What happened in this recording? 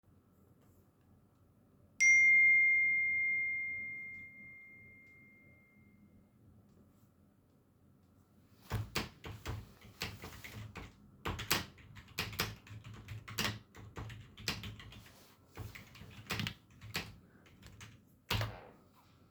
In the office; you get messages from coworkers. Having heard the notification sound; you briefly scan through their message; and answer promptly.